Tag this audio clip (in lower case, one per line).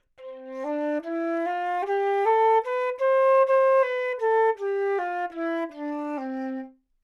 music
woodwind instrument
musical instrument